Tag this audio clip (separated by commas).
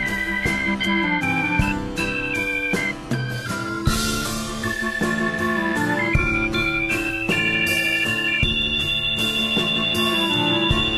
Music